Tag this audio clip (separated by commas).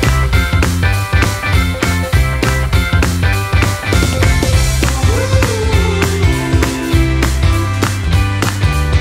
Music